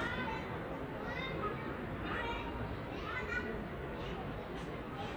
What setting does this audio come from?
residential area